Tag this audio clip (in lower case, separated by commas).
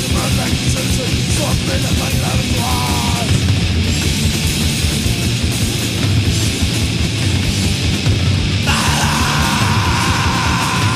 music